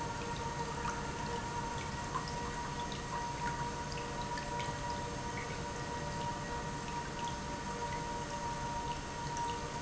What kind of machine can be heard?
pump